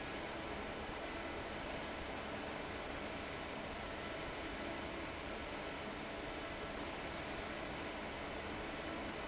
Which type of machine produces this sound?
fan